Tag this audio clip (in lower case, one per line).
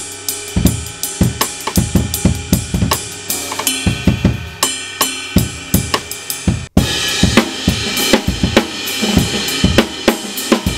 musical instrument
drum kit
hi-hat
bass drum
cymbal
drum
music
percussion